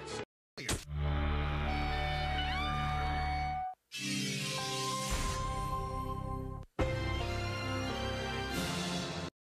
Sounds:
television
music

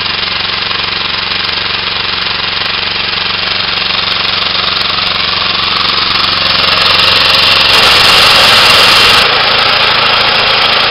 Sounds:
lawn mower
engine
lawn mowing

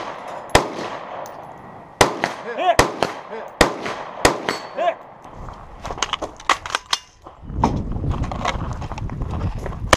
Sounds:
outside, rural or natural

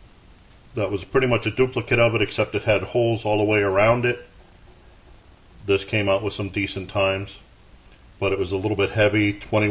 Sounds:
speech

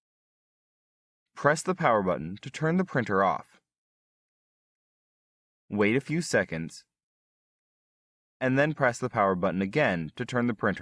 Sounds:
speech

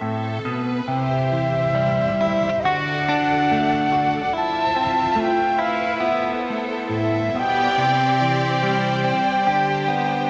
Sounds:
fiddle
music
musical instrument

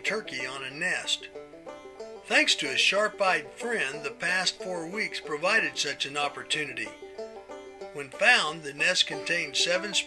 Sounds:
speech
music

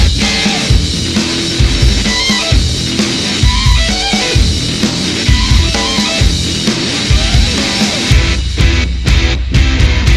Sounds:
music

